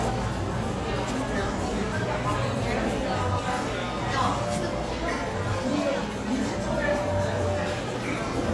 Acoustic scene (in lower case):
cafe